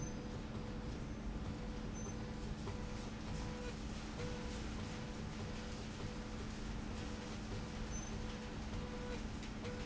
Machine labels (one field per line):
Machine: slide rail